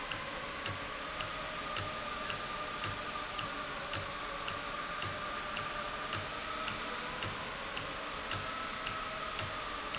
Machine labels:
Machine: valve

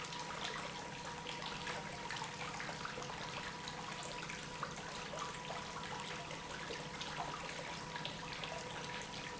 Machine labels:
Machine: pump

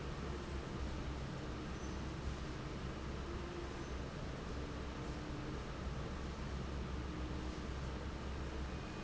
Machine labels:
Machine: fan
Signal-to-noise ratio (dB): 0 dB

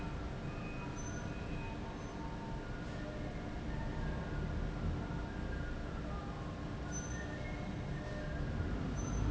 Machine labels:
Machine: fan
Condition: abnormal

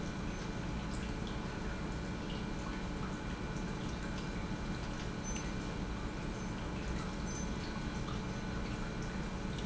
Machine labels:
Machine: pump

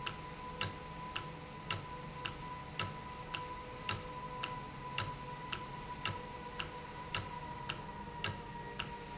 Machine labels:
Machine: valve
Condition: normal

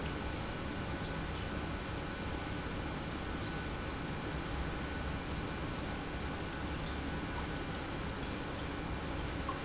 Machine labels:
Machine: pump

